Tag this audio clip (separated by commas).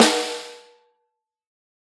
Snare drum, Drum, Percussion, Musical instrument, Music